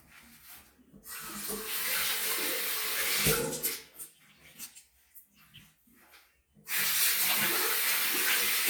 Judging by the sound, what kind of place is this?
restroom